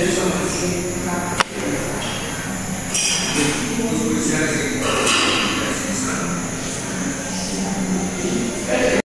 Sharp hissing noise accompanied by faint conversation in the background and camera tapping noise and metallic clanking